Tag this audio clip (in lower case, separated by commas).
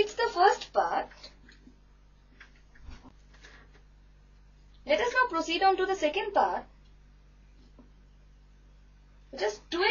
speech, inside a small room